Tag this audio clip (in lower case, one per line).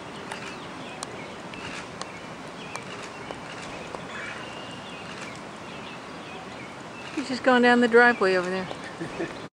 animal
speech
bird